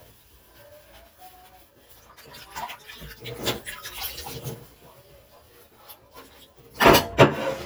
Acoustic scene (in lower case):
kitchen